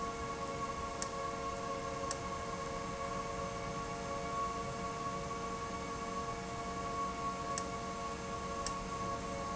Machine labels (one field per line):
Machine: valve